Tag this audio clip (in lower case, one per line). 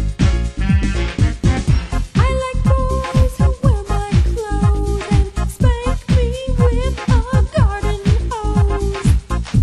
music